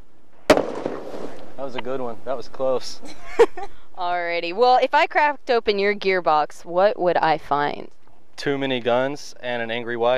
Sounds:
explosion

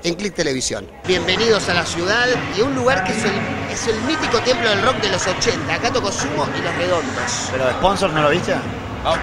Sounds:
music, speech

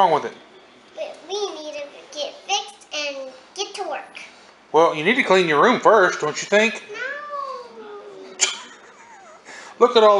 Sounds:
speech

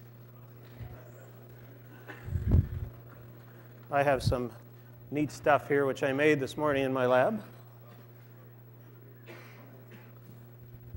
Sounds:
speech

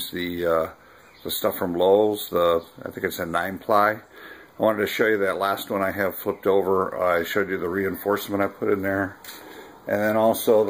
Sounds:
speech

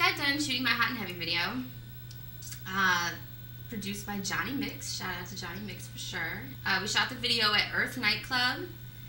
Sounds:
speech

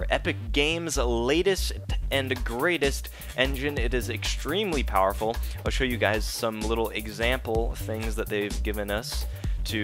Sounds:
music, speech

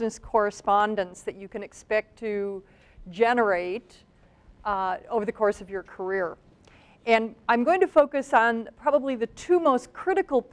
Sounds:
speech

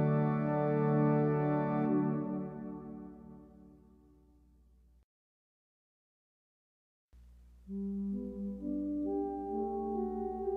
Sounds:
keyboard (musical), music, musical instrument

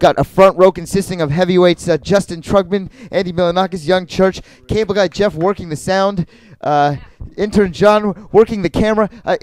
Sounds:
speech

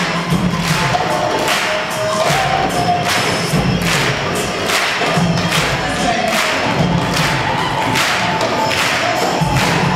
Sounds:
crowd

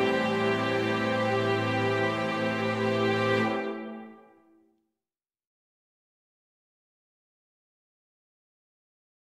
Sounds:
music

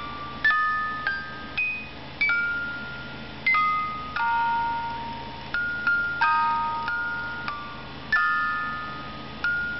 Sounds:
happy music, music

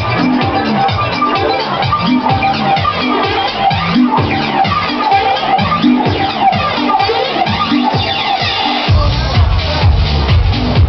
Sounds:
music, house music

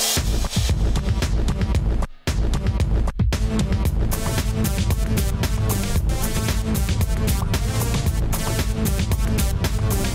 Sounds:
electronic music, music, techno

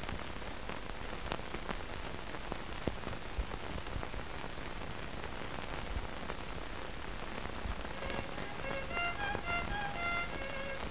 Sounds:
music, violin, musical instrument

